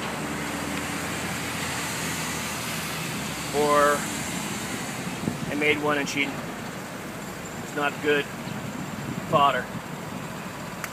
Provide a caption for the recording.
Engine sounds from cars along with a man talking